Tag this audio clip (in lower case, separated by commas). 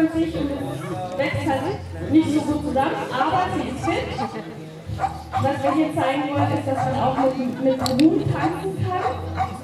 speech, music